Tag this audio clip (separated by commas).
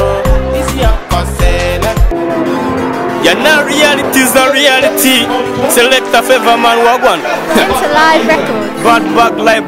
Funk, Speech, Pop music, Music